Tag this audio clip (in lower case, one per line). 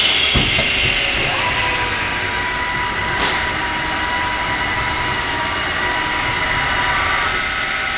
tools
sawing